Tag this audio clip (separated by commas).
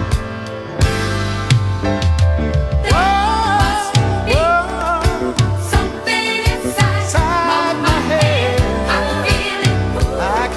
Music, Soul music